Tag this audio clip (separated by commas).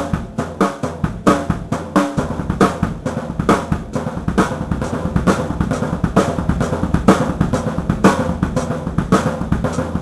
Musical instrument, Snare drum, Music, Drum, Drum kit